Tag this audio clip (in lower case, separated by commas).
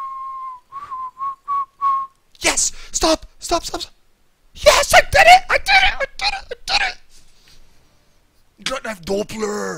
inside a small room, speech, whistling